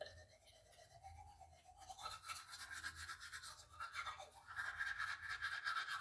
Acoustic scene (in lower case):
restroom